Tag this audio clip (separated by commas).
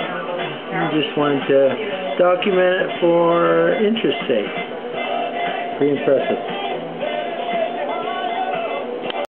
Speech, Music